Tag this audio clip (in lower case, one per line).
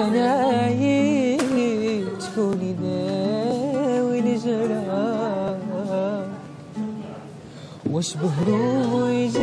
music
guitar
plucked string instrument
speech
musical instrument
acoustic guitar